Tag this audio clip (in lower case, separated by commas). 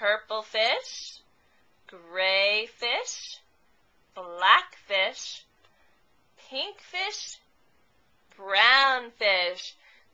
speech